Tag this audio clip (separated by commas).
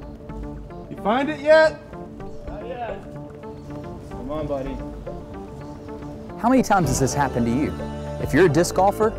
Speech, Music